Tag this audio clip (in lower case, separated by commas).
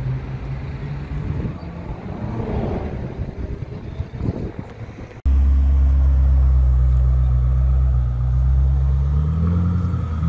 skidding